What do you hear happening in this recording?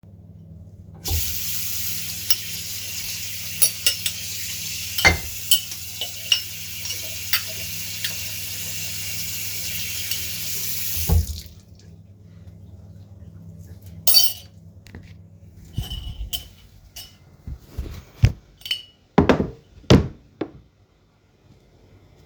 I turned on the water, made my dishes, turned off the water and placed the dishes on the drying rack.